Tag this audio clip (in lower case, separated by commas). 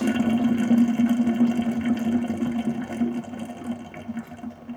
sink (filling or washing), domestic sounds